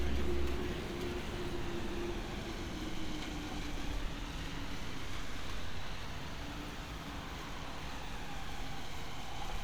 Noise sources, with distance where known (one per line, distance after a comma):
large-sounding engine, far